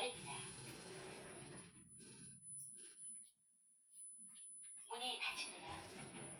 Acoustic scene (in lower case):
elevator